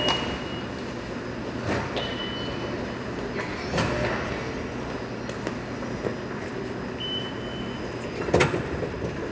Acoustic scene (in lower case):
subway station